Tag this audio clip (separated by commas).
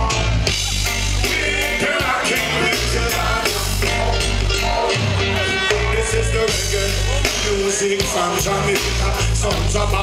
Music, Pop music